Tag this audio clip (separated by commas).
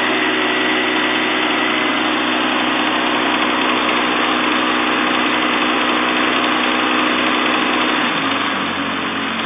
Heavy engine (low frequency)